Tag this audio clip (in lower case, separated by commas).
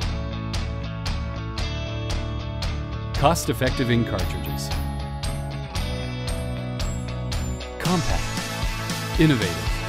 music, speech